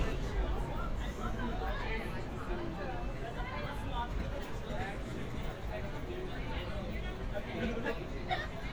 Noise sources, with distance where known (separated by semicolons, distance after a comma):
person or small group talking, near